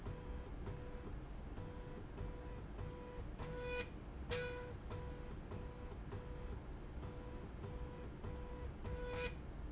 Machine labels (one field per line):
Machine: slide rail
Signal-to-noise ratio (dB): 6 dB